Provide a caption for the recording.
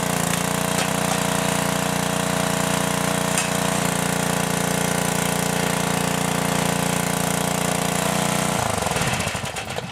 A small engine runs then turns off